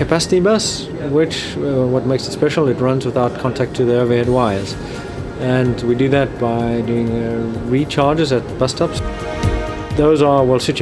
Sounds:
speech, music

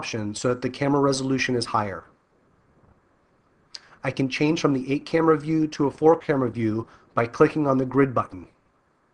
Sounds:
speech

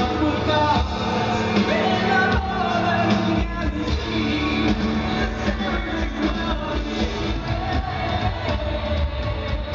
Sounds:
drum, musical instrument, drum kit, music

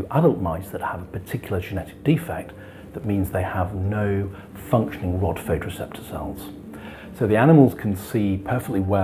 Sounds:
music, speech

